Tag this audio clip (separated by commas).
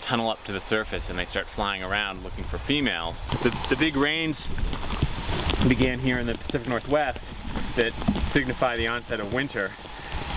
Rain on surface, Raindrop, Rain